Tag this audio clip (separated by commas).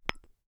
Glass, Tap